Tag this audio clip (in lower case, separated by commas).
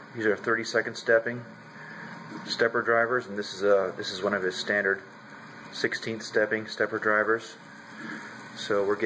speech